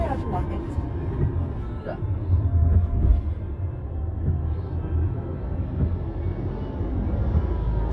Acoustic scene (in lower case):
car